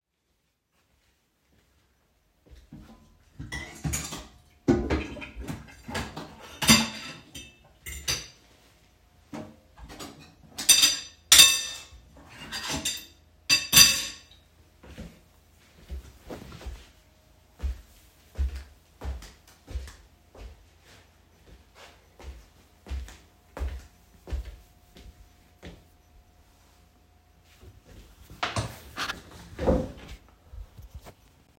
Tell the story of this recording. I organized my dishes on the kitchen, then I went straight to my desk chair and sit